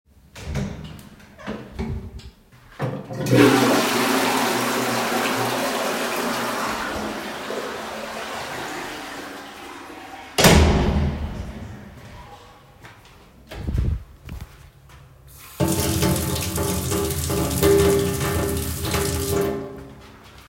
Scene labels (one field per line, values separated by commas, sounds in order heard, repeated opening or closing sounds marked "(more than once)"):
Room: bathroom, lavatory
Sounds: door (more than once), toilet flushing, running water